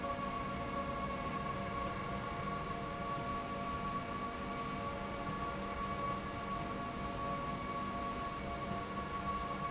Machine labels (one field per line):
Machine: slide rail